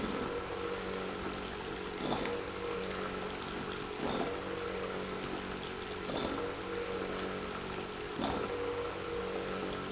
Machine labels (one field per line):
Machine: pump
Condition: abnormal